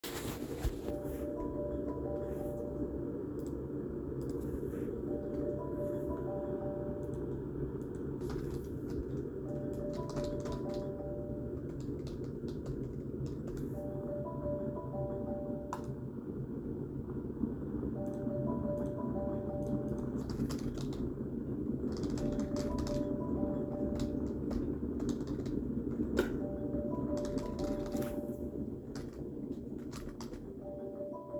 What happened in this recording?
keyboard typing, coffee machine in background, phone ringing